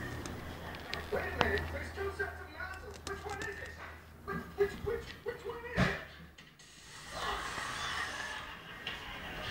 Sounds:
speech

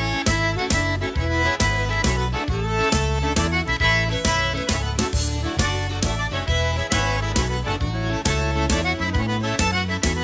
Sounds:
music

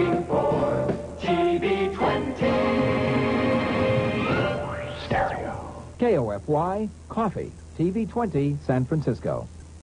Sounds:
music
speech

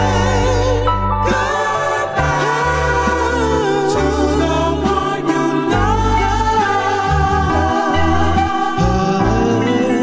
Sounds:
music
soul music
singing

